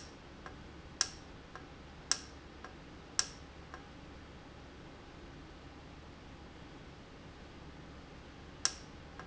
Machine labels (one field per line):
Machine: valve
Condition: normal